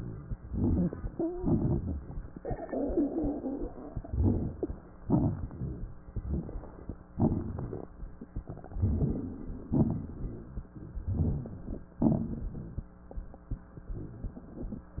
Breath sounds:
Inhalation: 0.39-1.26 s, 4.00-4.87 s, 6.10-6.97 s, 8.70-9.67 s, 10.94-11.91 s, 13.89-14.86 s
Exhalation: 1.32-2.33 s, 4.98-5.99 s, 7.08-7.96 s, 9.72-10.69 s, 11.96-12.93 s, 14.99-15.00 s
Crackles: 0.35-1.24 s, 1.31-2.32 s, 3.97-4.83 s, 4.96-5.95 s, 6.07-7.00 s, 7.06-7.99 s, 8.70-9.69 s, 9.74-10.67 s, 10.91-11.90 s, 11.92-12.91 s, 13.85-14.87 s, 14.99-15.00 s

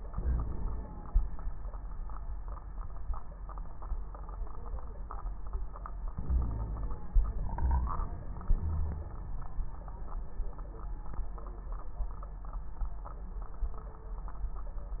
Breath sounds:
Inhalation: 0.07-0.86 s, 6.16-6.97 s
Wheeze: 0.21-0.51 s, 6.26-6.97 s, 8.61-9.14 s

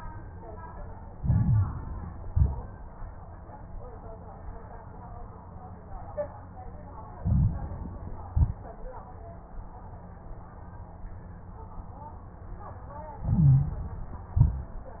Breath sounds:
Inhalation: 1.08-2.22 s, 7.16-8.30 s, 13.17-14.31 s
Exhalation: 2.22-2.88 s, 8.30-8.96 s, 14.35-15.00 s
Stridor: 13.17-13.85 s
Crackles: 1.08-2.22 s, 2.22-2.88 s, 7.16-8.30 s, 8.30-8.96 s, 14.35-15.00 s

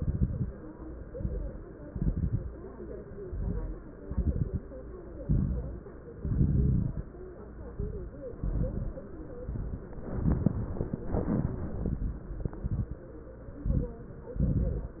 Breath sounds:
Inhalation: 1.08-1.63 s, 3.13-3.82 s, 5.23-5.87 s, 7.75-8.28 s, 9.39-9.93 s, 11.06-12.05 s, 13.62-14.08 s
Exhalation: 0.00-0.55 s, 1.86-2.54 s, 4.01-4.65 s, 6.18-7.10 s, 8.38-9.04 s, 10.11-10.78 s, 12.43-13.10 s, 14.33-15.00 s
Crackles: 0.00-0.55 s, 1.08-1.63 s, 1.86-2.54 s, 3.13-3.82 s, 4.01-4.65 s, 5.23-5.87 s, 6.18-7.10 s, 7.75-8.28 s, 8.38-9.04 s, 9.39-9.93 s, 10.11-10.78 s, 11.06-12.05 s, 12.43-13.10 s, 13.62-14.08 s, 14.33-15.00 s

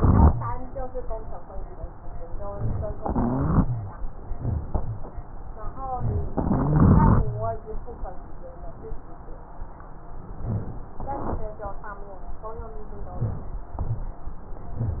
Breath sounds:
Inhalation: 3.02-3.68 s, 6.32-7.27 s
Rhonchi: 3.02-4.00 s, 6.53-7.51 s

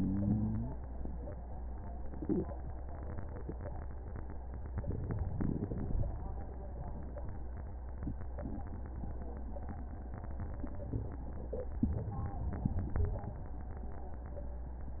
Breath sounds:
Inhalation: 4.71-5.33 s, 11.83-12.73 s
Exhalation: 5.34-6.08 s, 12.73-13.24 s

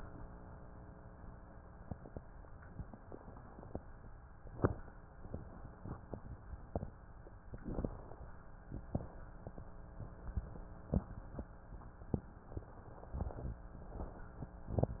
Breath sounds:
Inhalation: 4.21-5.10 s, 7.42-8.58 s, 12.93-13.71 s
Exhalation: 8.57-9.78 s, 13.71-14.52 s
Wheeze: 13.13-13.71 s
Crackles: 4.21-5.10 s, 7.42-8.58 s, 8.59-9.78 s

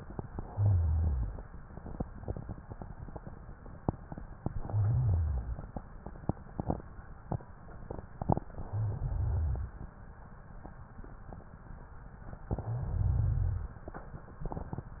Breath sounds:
Inhalation: 0.29-1.62 s, 4.47-5.80 s, 8.58-9.90 s, 12.49-13.82 s

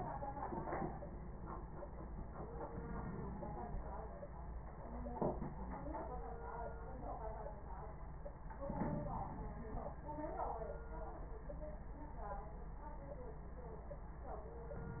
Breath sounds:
Inhalation: 2.70-3.78 s, 8.62-9.70 s, 14.74-15.00 s

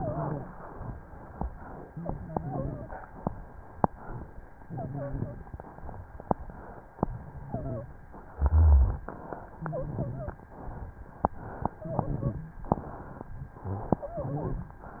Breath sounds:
Wheeze: 0.00-0.48 s, 2.28-2.96 s, 4.63-5.31 s, 7.44-7.91 s, 9.62-10.42 s, 11.90-12.52 s, 13.64-13.98 s, 14.21-14.78 s
Rhonchi: 8.31-9.11 s

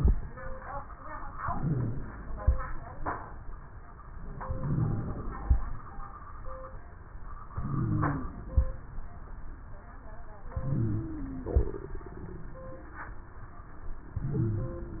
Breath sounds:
Inhalation: 1.35-2.56 s, 4.38-5.59 s, 7.48-8.69 s, 10.52-11.73 s, 14.15-15.00 s
Wheeze: 1.35-2.56 s, 7.48-8.69 s, 10.52-11.73 s, 14.15-15.00 s

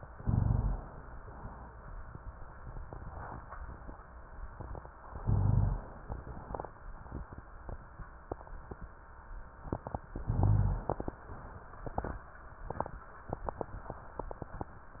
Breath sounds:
Inhalation: 0.15-0.93 s, 5.12-6.05 s, 10.23-11.08 s
Rhonchi: 0.15-0.93 s, 5.18-5.90 s, 10.23-10.95 s

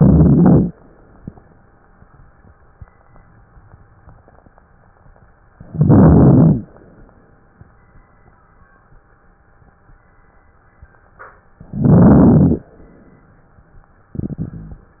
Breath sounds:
Inhalation: 0.00-0.72 s, 5.67-6.66 s, 11.69-12.68 s
Crackles: 0.00-0.72 s, 5.67-6.66 s, 11.69-12.68 s

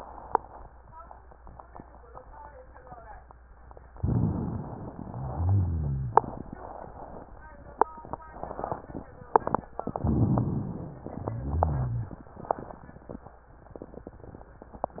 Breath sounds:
Inhalation: 3.97-4.95 s, 10.00-11.04 s
Exhalation: 5.03-6.26 s, 11.08-12.31 s
Rhonchi: 5.03-6.26 s, 11.08-12.31 s

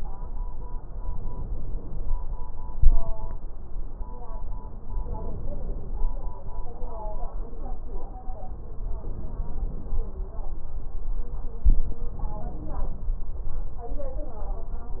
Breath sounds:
Inhalation: 0.99-2.04 s, 5.09-6.06 s, 9.02-9.99 s, 12.19-13.15 s

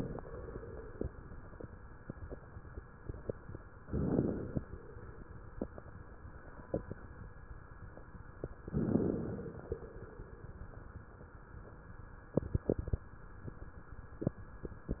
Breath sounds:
Inhalation: 3.81-4.61 s, 8.67-9.70 s
Crackles: 3.81-4.61 s, 8.67-9.70 s

